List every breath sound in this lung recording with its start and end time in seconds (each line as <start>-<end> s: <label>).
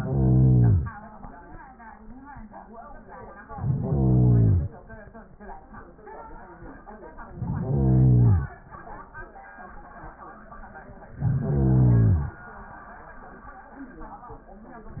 0.00-0.93 s: inhalation
3.44-4.78 s: inhalation
7.23-8.58 s: inhalation
11.10-12.44 s: inhalation